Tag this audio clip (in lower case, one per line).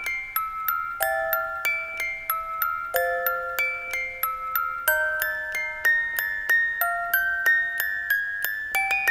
music
glockenspiel